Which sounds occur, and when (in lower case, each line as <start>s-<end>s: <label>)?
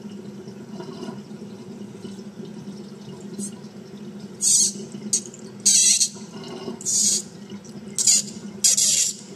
0.0s-9.3s: sink (filling or washing)
3.4s-3.6s: generic impact sounds
4.4s-4.8s: generic impact sounds
5.1s-5.4s: generic impact sounds
5.7s-6.1s: generic impact sounds
6.8s-7.3s: generic impact sounds
7.9s-8.4s: generic impact sounds
8.6s-9.2s: generic impact sounds